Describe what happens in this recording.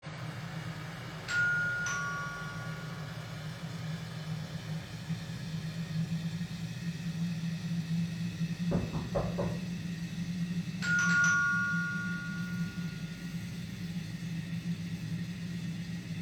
the phone lies on the kitchen table